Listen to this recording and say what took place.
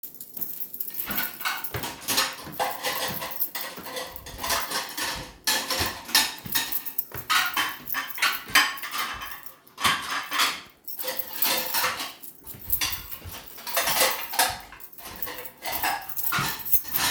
I walked through the kitchen area while holding my keychain, creating a continuous jingling sound. At the same time, another person was standing organizing the cutlery on the counter, making a clinking noise. My footsteps were also clearly audible as I moved around the kitchen while these events occurred